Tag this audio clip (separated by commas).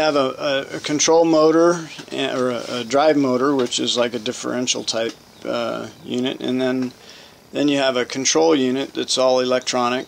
Speech, inside a small room